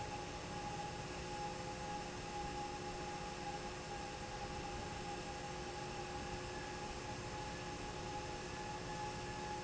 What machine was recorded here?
fan